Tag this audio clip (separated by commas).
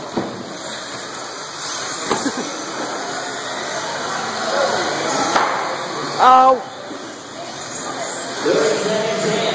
Speech